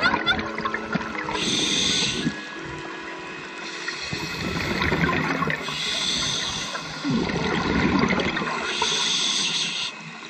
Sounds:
scuba diving

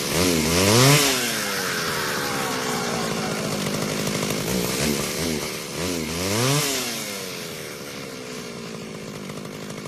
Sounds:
Chainsaw

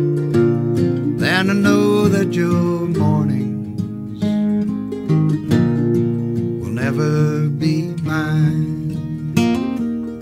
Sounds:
Music

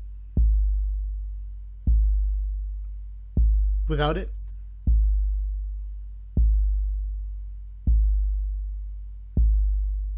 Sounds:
Music, Speech

